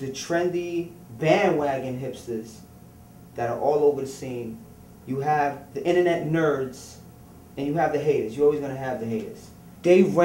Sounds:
speech

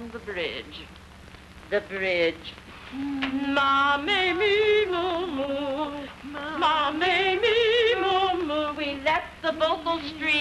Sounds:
speech, female singing

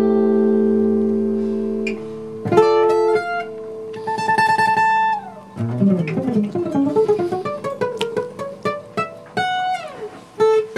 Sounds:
acoustic guitar, plucked string instrument, guitar, musical instrument, music

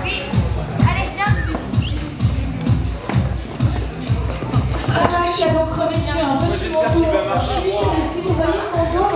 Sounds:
music, speech

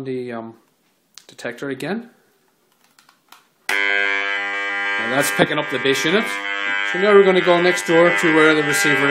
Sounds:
speech

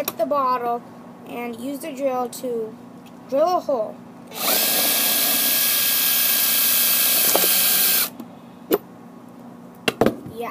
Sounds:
drill

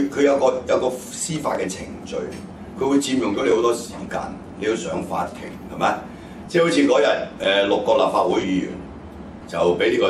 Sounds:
speech

